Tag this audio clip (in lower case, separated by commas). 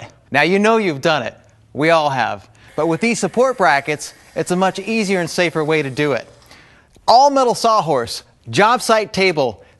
speech